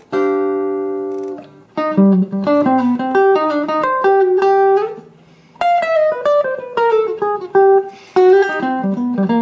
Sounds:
strum, plucked string instrument, musical instrument, guitar, music

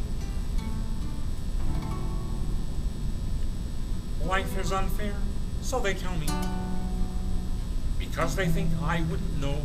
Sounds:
music

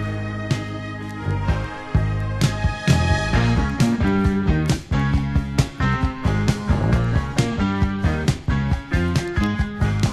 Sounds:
music, rock and roll

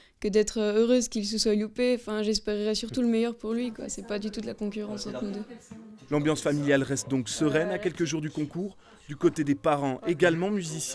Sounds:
speech

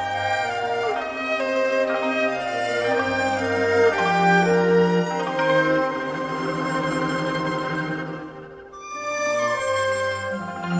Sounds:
bowed string instrument, music, orchestra, inside a large room or hall

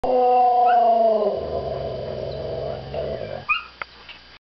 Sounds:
yip, bow-wow

